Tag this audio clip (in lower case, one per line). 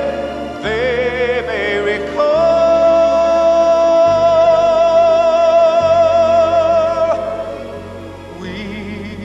singing